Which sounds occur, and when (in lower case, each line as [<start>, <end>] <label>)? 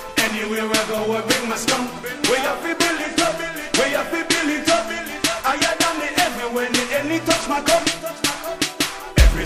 [0.00, 9.45] music
[0.14, 9.45] male singing